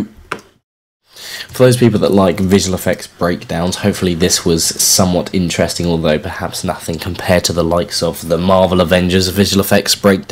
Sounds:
inside a small room, speech

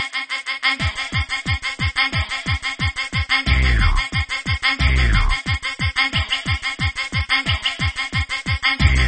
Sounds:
electronic dance music, electronic music, music

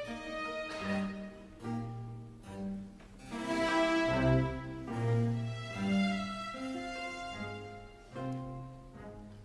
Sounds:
music

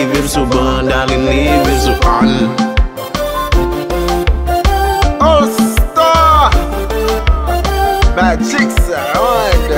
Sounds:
music, afrobeat

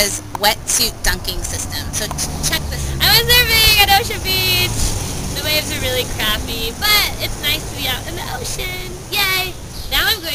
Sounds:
speech

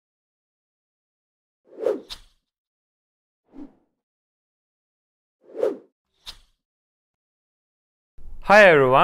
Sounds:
speech, silence

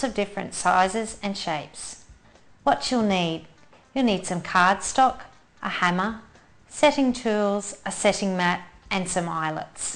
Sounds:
speech

